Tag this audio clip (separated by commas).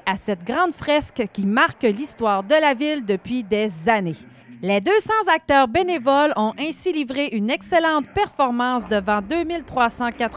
Speech